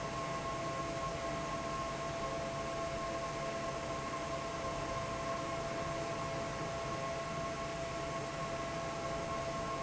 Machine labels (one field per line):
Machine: fan